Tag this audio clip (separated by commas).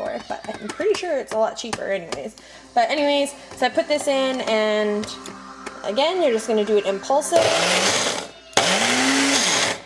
Speech, Blender, inside a small room